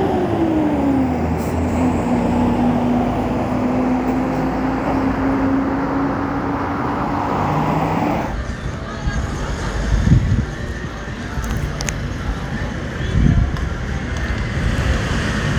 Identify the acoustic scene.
street